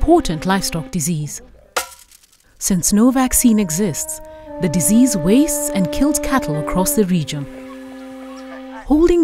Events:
[0.00, 1.34] female speech
[0.00, 9.23] music
[1.76, 2.59] generic impact sounds
[2.60, 4.15] female speech
[4.21, 4.59] breathing
[4.60, 7.45] female speech
[7.47, 9.23] bird vocalization

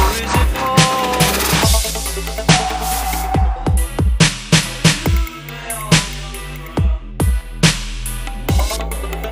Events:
[0.01, 9.31] music
[0.12, 1.43] male singing
[3.52, 4.03] male singing
[4.81, 7.45] male singing

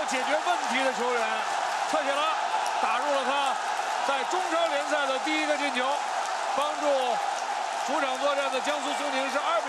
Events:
[0.00, 1.55] male speech
[0.00, 9.65] crowd
[1.86, 2.46] male speech
[2.75, 3.61] male speech
[4.07, 6.11] male speech
[6.46, 7.30] male speech
[7.76, 9.65] male speech

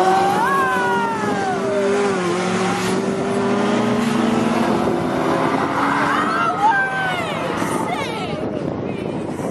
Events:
[0.03, 9.50] car
[5.60, 7.50] female speech
[7.75, 8.73] female speech

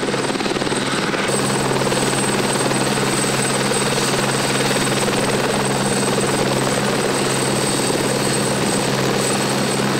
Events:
[0.03, 9.95] helicopter

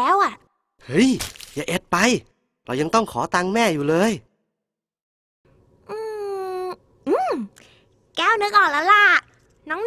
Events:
[0.00, 0.48] child speech
[0.00, 4.22] conversation
[0.00, 5.01] background noise
[0.35, 0.43] tick
[0.78, 1.14] man speaking
[1.17, 1.62] generic impact sounds
[1.52, 1.78] man speaking
[1.91, 2.29] man speaking
[2.20, 2.27] tick
[2.61, 4.21] man speaking
[5.37, 9.85] background noise
[5.82, 9.85] conversation
[5.85, 6.75] child speech
[7.03, 7.46] child speech
[7.54, 7.61] tick
[7.60, 7.87] breathing
[8.16, 9.22] child speech
[9.27, 9.57] generic impact sounds
[9.64, 9.85] child speech

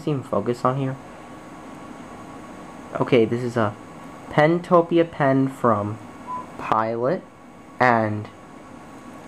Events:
[0.01, 0.92] man speaking
[0.01, 9.25] mechanisms
[2.90, 3.70] man speaking
[4.30, 5.95] man speaking
[6.26, 6.42] whistling
[6.53, 7.25] man speaking
[7.79, 8.30] man speaking

